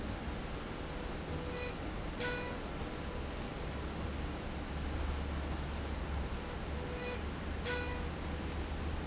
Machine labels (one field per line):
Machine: slide rail